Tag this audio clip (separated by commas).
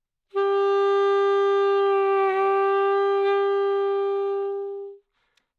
Musical instrument, Music, woodwind instrument